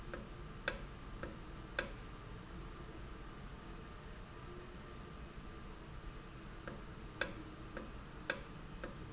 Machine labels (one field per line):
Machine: valve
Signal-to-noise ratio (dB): 6 dB